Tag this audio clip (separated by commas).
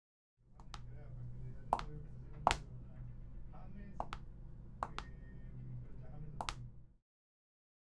Walk